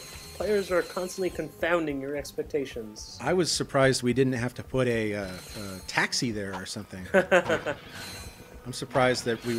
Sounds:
Music, Speech

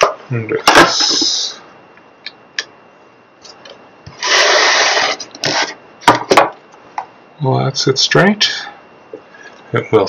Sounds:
inside a small room, Speech

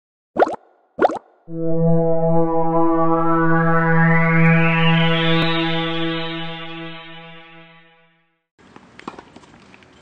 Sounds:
Plop, Music

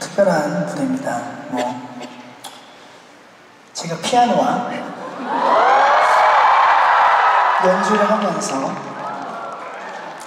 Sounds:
Speech

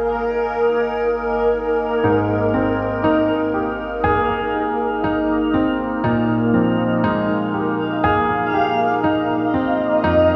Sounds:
Music

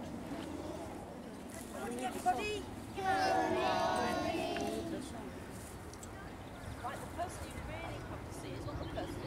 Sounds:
Animal, Speech

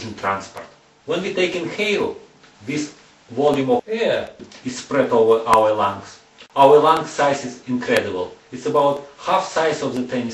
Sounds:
Speech

